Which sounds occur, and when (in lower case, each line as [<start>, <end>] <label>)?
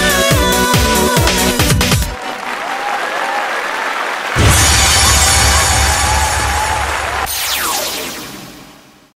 [0.00, 1.54] female singing
[0.00, 2.16] music
[1.95, 7.22] applause
[2.18, 3.96] shout
[2.55, 4.33] crowd
[4.33, 9.11] sound effect
[4.50, 7.25] shout
[5.39, 6.89] crowd